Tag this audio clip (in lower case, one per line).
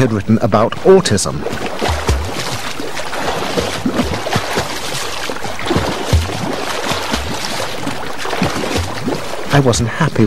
speech